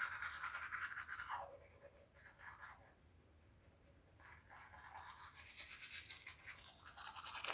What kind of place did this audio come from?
restroom